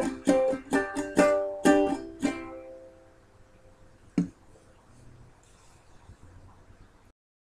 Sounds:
playing ukulele

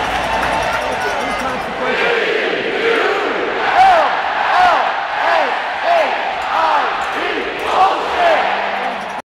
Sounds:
Speech, Music

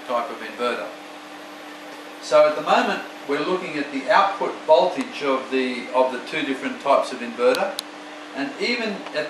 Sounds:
Speech

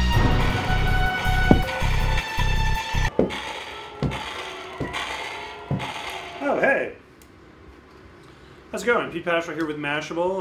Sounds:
Speech, Music

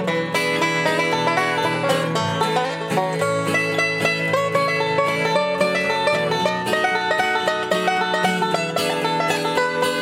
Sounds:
Plucked string instrument, playing banjo, Music, Banjo, Musical instrument

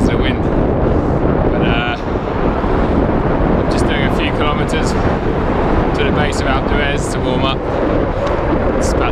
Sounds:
Bicycle, Speech, Vehicle

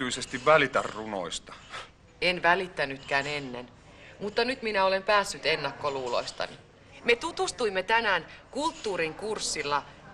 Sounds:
Speech

